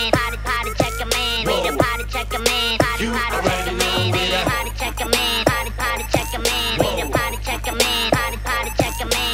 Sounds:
music, funk

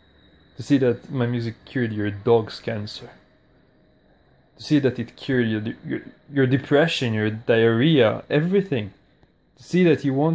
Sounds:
speech

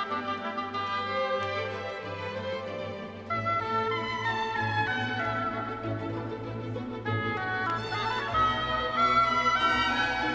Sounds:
playing oboe

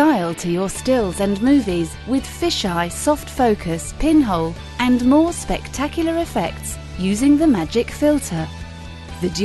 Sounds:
music, speech

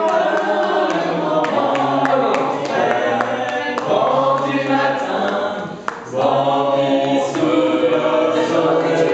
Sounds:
speech, male singing, female singing, singing choir, choir

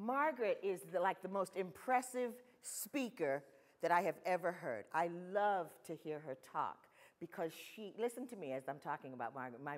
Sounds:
speech

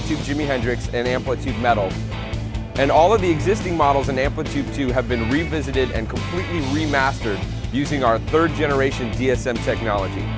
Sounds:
music, musical instrument, plucked string instrument, guitar, speech

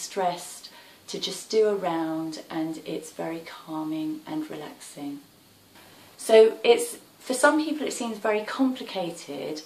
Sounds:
speech

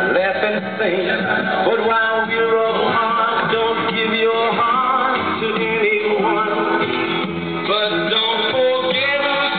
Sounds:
radio, music

